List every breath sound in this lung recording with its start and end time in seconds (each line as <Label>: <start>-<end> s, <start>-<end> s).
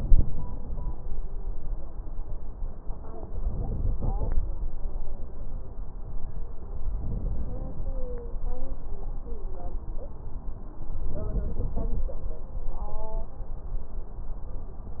Inhalation: 3.39-4.42 s, 6.94-7.97 s, 11.06-12.09 s